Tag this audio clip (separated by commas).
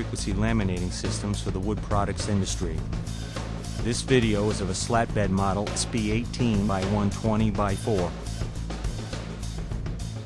Music, Speech